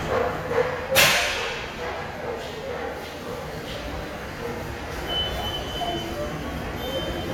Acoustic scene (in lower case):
subway station